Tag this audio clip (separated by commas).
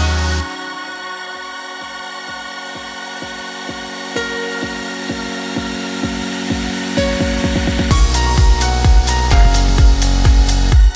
Music